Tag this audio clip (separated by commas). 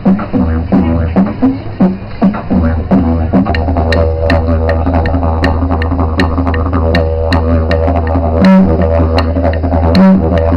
Didgeridoo, Music